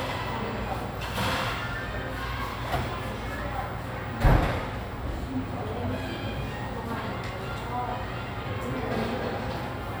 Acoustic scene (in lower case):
cafe